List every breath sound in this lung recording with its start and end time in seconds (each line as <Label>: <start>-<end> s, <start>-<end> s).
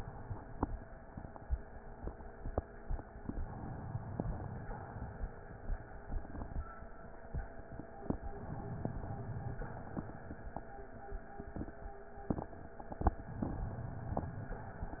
Inhalation: 3.23-4.18 s, 8.46-9.56 s, 13.41-14.53 s
Exhalation: 4.18-5.28 s, 9.56-10.66 s